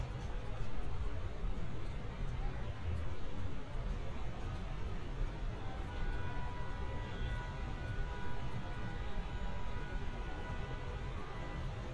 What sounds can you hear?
car horn